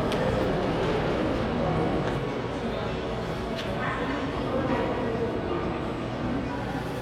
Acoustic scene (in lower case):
crowded indoor space